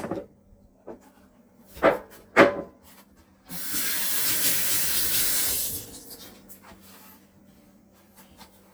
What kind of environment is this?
kitchen